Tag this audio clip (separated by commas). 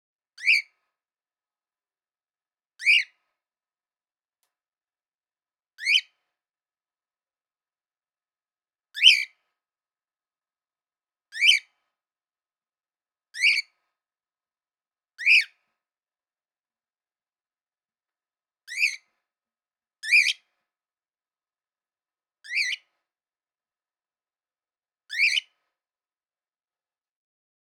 Bird vocalization, Bird, Wild animals, Animal